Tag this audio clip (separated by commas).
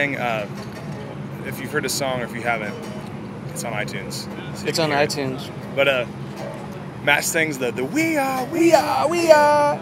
Speech